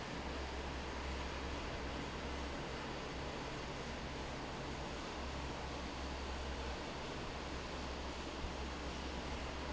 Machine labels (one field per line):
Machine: fan